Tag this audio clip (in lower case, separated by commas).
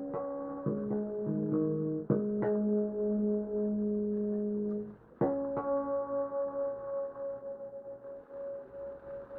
music